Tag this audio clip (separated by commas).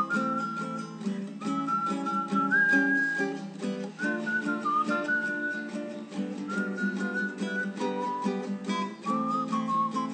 Strum, Guitar, Musical instrument, Music, Acoustic guitar, Plucked string instrument